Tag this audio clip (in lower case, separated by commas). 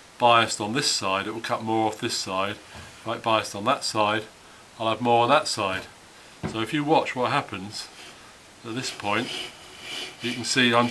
planing timber